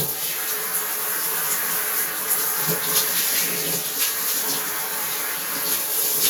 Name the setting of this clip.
restroom